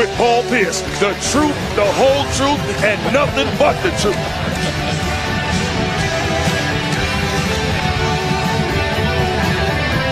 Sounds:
music, speech

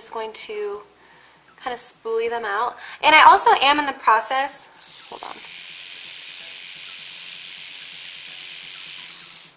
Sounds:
music, speech

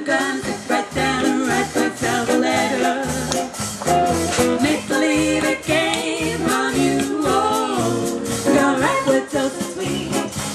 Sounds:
jazz, singing, yodeling, musical instrument, music, percussion, swing music

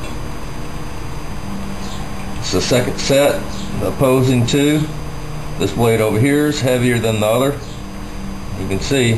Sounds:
speech

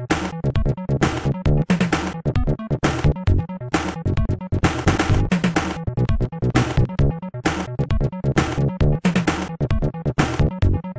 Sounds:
video game music

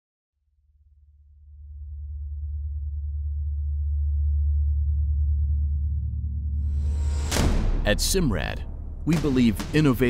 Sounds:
speech, music

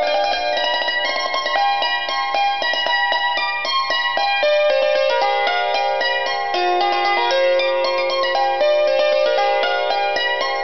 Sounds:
traditional music, music

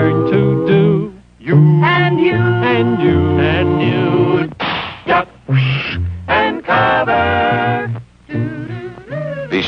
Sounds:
speech, music

